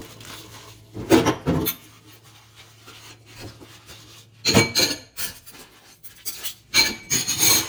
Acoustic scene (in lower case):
kitchen